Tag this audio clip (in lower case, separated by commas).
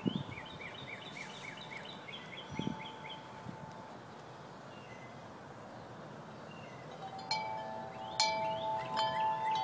wind chime, chime